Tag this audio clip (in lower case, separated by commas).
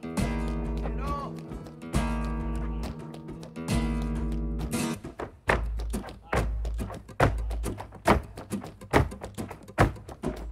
music of latin america, music, flamenco, speech